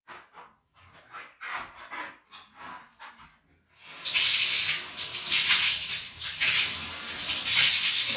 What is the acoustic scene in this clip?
restroom